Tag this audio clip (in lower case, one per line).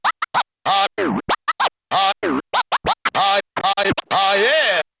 musical instrument
music
scratching (performance technique)